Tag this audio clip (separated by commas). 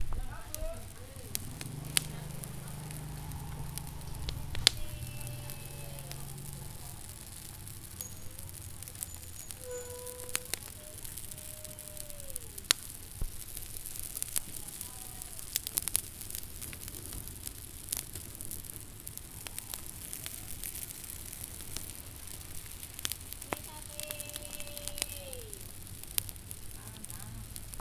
Fire, Water, Rain